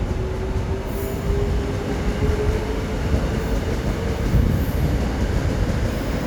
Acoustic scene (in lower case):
subway station